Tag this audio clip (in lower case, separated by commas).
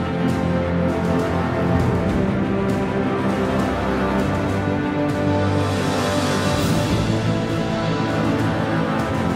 music